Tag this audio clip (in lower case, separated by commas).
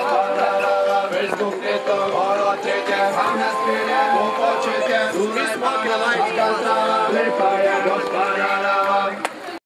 music